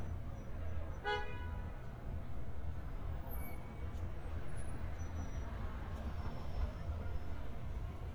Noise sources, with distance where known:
car horn, near

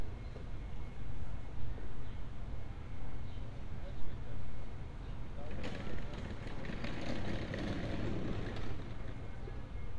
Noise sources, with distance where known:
background noise

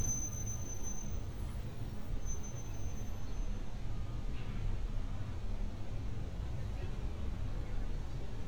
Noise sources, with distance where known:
person or small group talking

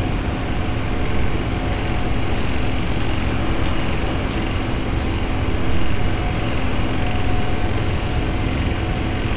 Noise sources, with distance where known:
large-sounding engine, near

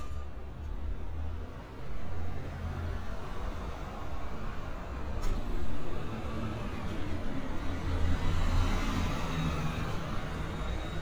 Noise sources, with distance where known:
large-sounding engine, near

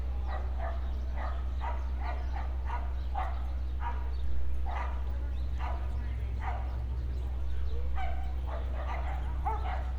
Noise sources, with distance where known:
person or small group talking, near
dog barking or whining, near

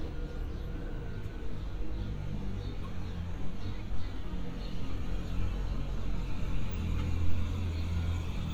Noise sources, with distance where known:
medium-sounding engine
person or small group talking

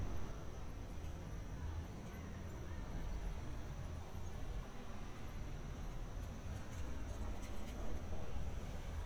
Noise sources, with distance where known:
background noise

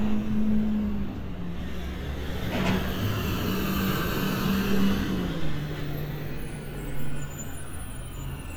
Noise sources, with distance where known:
large-sounding engine, near

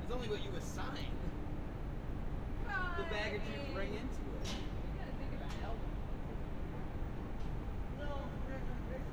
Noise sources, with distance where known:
person or small group talking

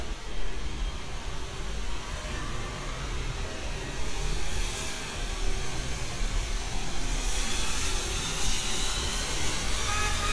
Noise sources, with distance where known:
car horn

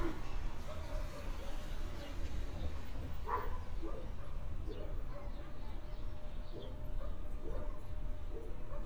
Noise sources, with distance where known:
background noise

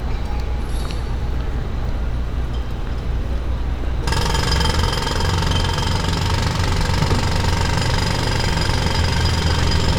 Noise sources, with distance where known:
jackhammer, near

